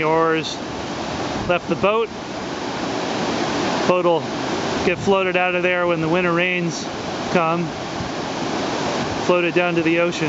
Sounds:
sailing ship
speech

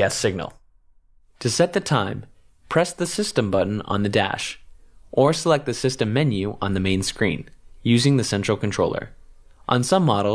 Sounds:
speech

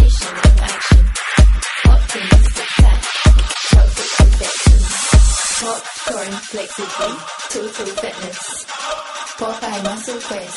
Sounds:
music
roll

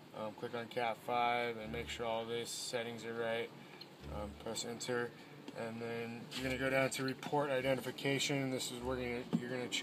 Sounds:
speech

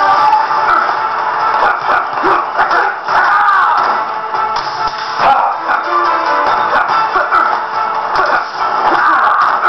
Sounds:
music

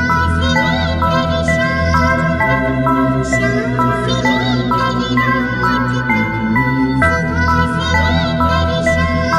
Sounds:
music

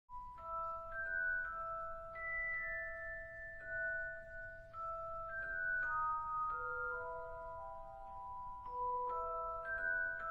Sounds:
glockenspiel
mallet percussion
xylophone

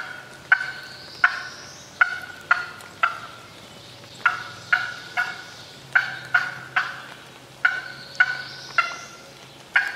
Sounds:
turkey gobbling

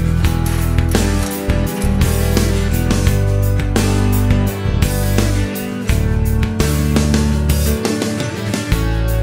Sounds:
music

